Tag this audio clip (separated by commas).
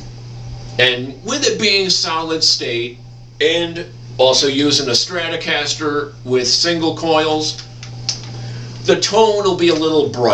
Speech